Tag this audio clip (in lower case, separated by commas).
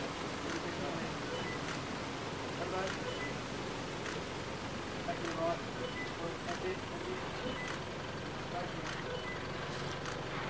speech